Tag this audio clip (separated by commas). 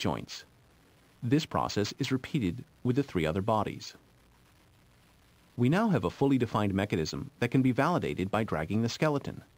Speech